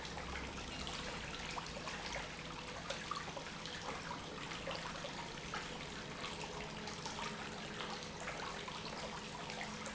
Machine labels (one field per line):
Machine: pump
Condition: normal